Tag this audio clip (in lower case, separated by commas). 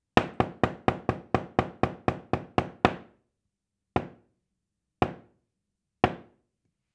knock, door, wood, domestic sounds